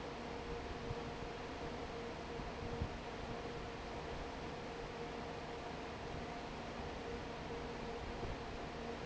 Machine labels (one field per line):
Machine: fan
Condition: normal